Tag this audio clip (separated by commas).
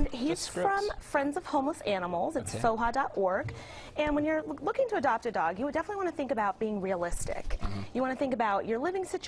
Speech